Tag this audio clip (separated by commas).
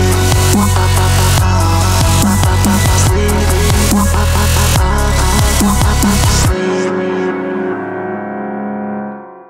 Electric piano